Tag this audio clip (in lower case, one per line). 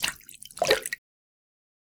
splash
liquid